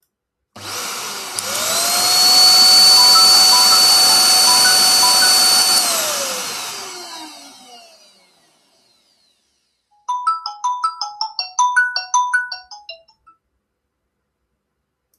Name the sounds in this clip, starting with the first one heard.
vacuum cleaner, phone ringing